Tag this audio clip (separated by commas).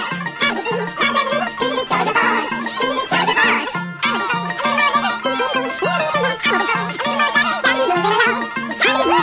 Music